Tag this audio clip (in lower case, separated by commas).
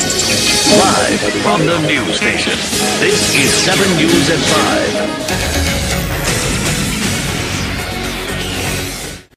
music, exciting music